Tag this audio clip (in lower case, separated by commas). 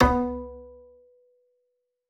musical instrument, music, bowed string instrument